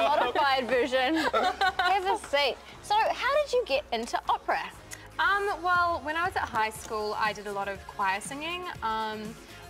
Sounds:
Speech

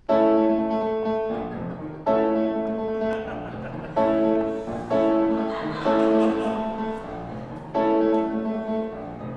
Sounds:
Music, Classical music, Independent music

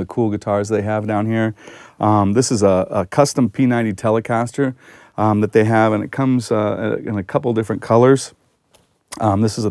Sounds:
Speech

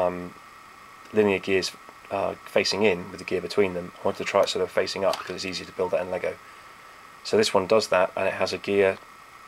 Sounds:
Speech

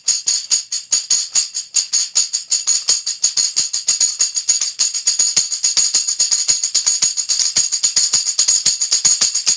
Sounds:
playing tambourine

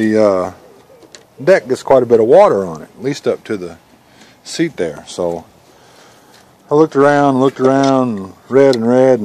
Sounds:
Speech

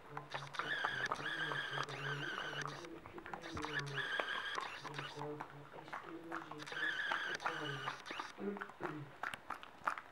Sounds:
mastication, Speech

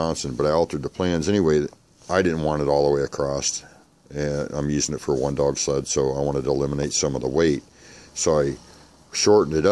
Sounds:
Speech

